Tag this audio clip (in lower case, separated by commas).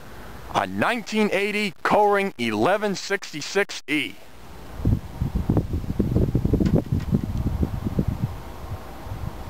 speech